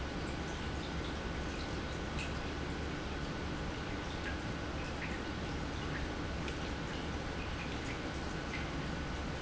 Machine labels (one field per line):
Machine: pump